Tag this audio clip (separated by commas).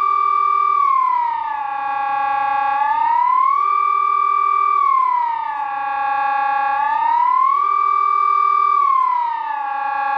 civil defense siren